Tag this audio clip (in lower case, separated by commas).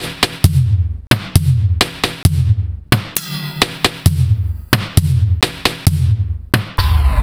drum kit, percussion, music, musical instrument